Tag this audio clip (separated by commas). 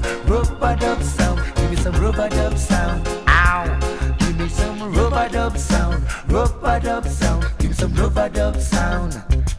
Reggae, Music